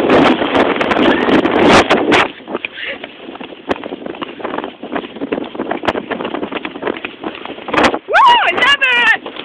Heavy wind and clopping followed by women screeching